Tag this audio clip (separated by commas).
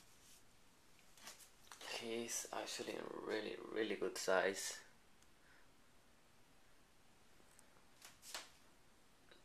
Speech, inside a small room